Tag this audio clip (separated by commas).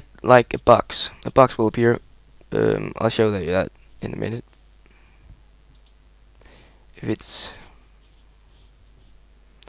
inside a small room, Speech